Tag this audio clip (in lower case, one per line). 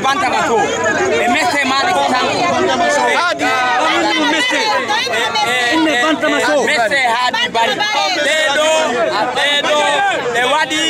speech